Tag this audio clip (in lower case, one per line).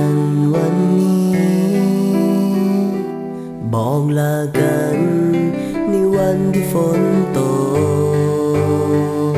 music